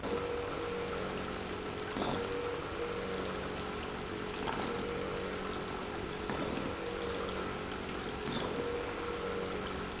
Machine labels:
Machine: pump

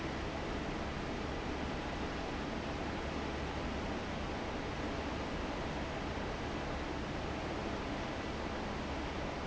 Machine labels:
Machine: fan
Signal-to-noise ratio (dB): -6 dB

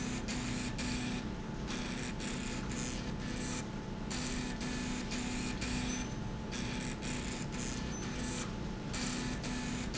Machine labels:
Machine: slide rail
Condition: abnormal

